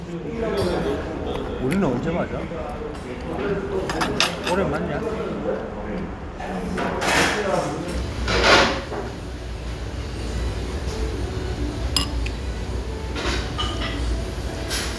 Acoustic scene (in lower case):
restaurant